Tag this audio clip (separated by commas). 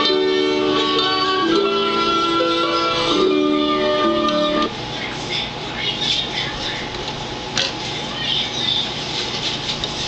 Music, Speech